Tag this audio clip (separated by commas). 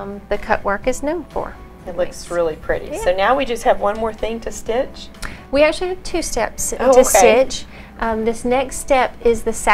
Music, Speech